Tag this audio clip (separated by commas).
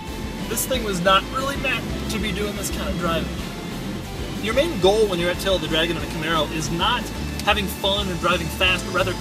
Speech, Music